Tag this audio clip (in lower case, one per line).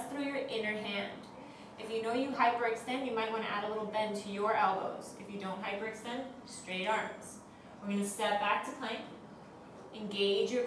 speech